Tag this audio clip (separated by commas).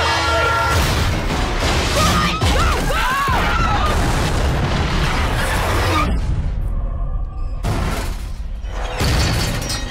Boom, Music, Speech